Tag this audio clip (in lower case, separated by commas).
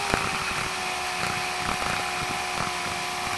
tools